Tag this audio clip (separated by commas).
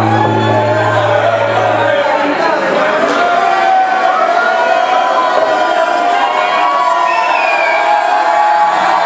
Music